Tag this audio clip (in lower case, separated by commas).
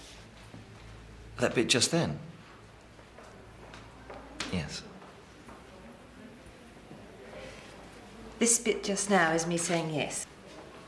speech